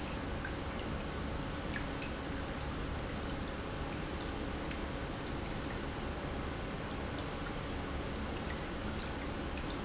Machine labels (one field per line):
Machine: pump